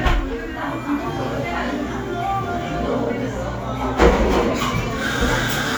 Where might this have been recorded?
in a cafe